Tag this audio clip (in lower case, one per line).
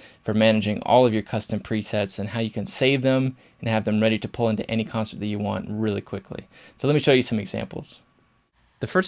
speech